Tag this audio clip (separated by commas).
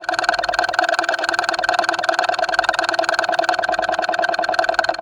Rattle